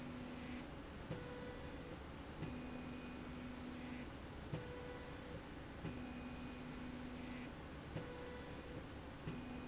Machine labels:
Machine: slide rail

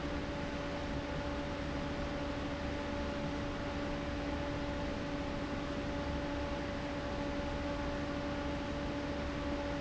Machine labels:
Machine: fan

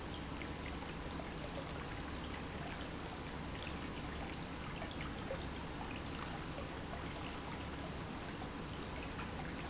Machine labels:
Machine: pump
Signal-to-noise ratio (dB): 0 dB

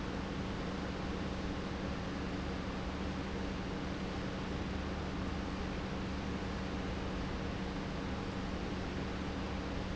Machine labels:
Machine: pump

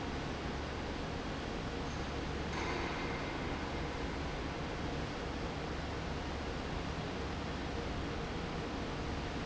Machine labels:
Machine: fan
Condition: normal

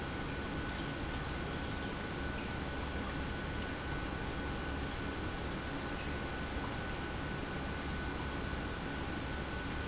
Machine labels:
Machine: pump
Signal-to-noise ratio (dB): -6 dB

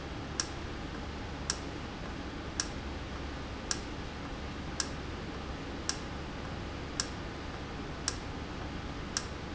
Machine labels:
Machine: valve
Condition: normal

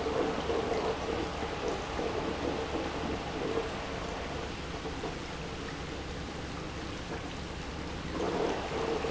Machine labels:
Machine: pump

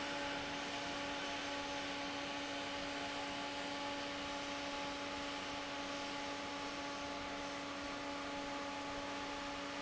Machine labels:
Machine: fan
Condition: normal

